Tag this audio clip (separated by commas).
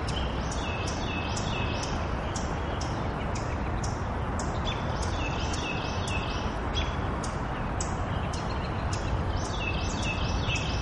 Bird, Chirp, bird call